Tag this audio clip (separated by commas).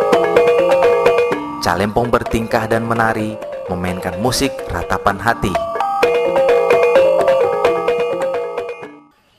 Music, Speech